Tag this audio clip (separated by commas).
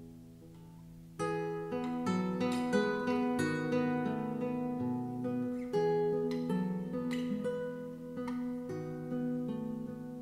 Guitar, Music, Strum, Musical instrument, Plucked string instrument